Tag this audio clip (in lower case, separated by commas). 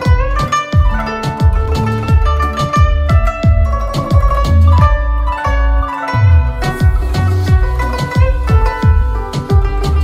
playing zither